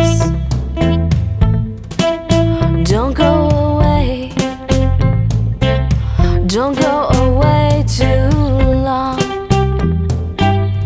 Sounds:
music

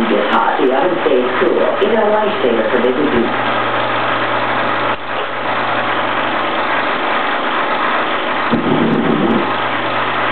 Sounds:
speech

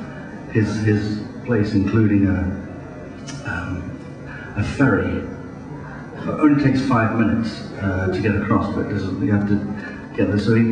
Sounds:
speech

